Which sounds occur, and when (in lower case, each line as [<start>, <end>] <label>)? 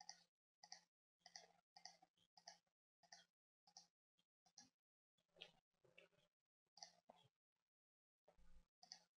[8.78, 9.09] clicking